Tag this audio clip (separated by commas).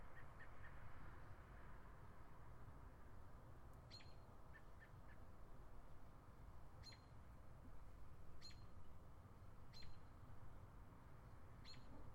Animal, bird song, Chirp, Wild animals, Bird